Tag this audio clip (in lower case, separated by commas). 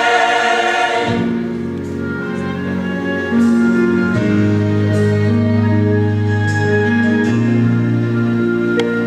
whoop, music